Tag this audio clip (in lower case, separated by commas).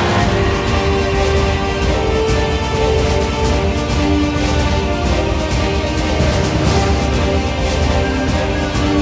music